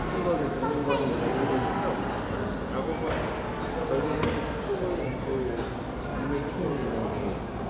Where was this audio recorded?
in a crowded indoor space